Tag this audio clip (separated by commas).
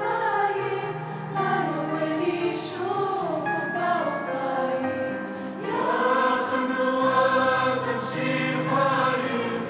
Music